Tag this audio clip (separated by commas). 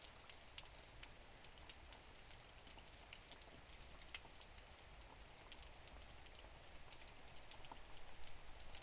Water, Rain